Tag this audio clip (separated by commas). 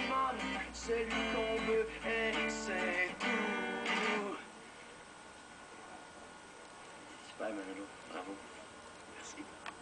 Music, Speech